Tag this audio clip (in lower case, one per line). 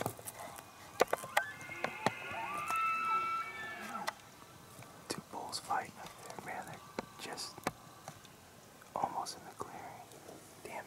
elk bugling